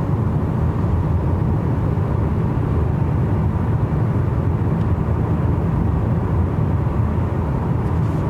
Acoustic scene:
car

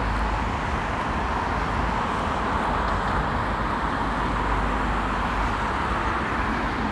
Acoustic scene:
street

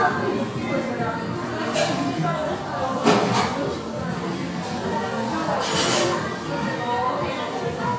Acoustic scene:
crowded indoor space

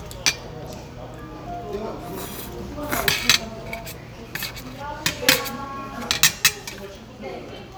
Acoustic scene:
restaurant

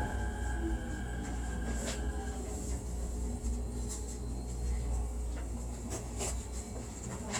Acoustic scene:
subway train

